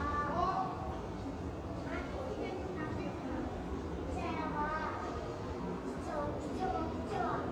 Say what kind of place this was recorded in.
subway station